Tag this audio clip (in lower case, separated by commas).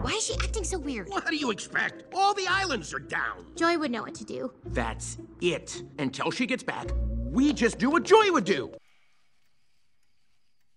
speech